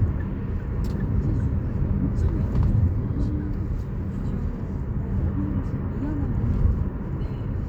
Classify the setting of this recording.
car